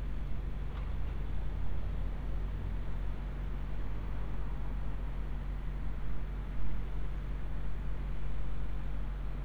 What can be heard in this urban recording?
engine of unclear size